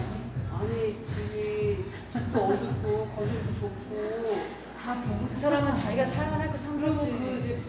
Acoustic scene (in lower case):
cafe